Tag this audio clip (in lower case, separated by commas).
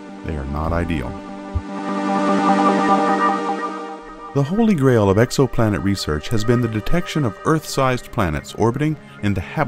speech, music